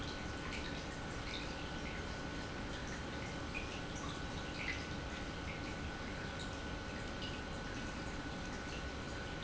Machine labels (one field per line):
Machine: pump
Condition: normal